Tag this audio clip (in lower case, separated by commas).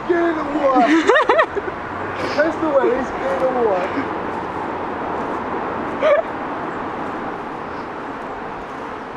speech